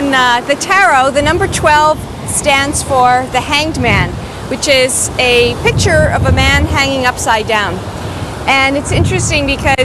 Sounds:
speech

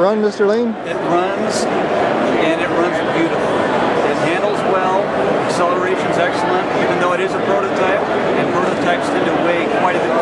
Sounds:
speech

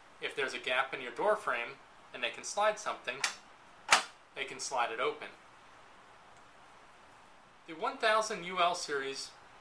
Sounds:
speech

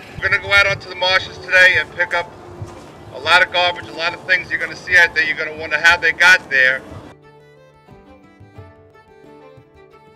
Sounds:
speech
music

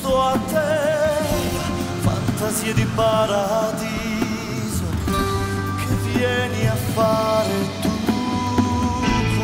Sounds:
music

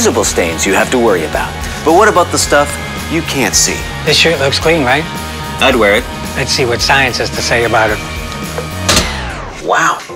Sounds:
speech
music

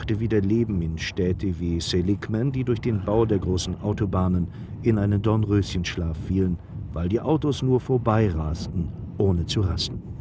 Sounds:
speech

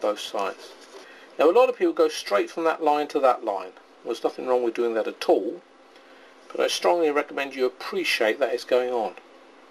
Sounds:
speech
inside a small room

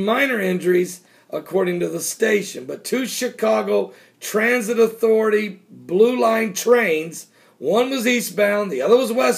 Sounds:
speech

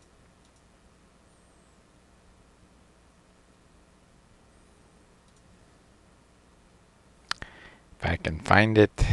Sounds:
speech

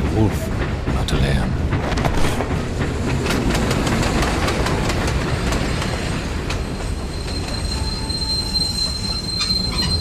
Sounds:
speech

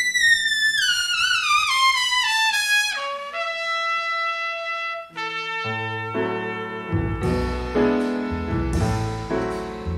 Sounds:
music
trumpet

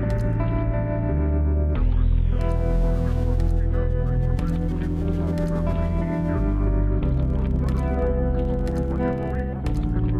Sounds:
music

